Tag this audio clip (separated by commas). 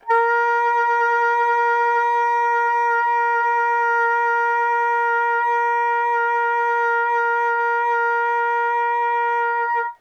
Music, woodwind instrument, Musical instrument